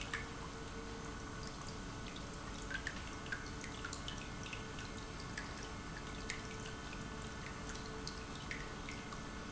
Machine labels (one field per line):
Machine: pump